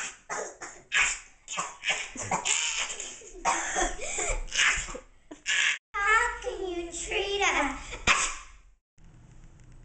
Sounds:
Speech, Cough

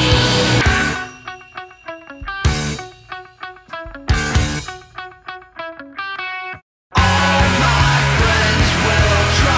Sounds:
Music

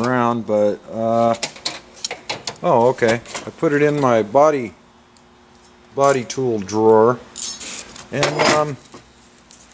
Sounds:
Speech

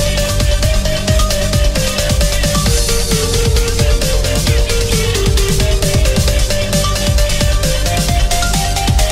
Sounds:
Music

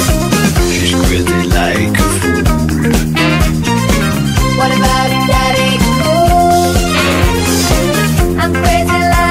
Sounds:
Music

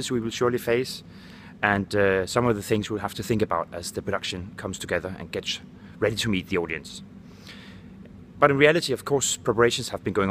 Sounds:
Speech

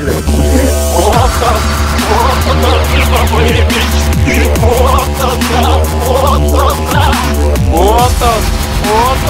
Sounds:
Speech, Electronic music, Dubstep, Music

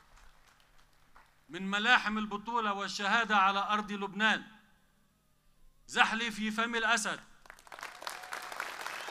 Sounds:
Speech, monologue, Male speech

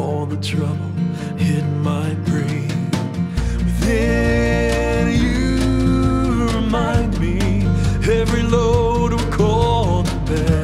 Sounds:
Music, Jazz

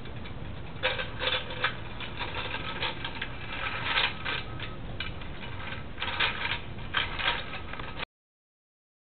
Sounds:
Vehicle

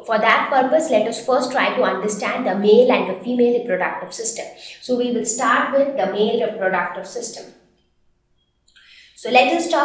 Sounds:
Speech

